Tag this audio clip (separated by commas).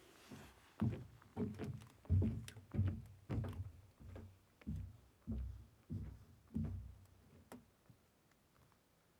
footsteps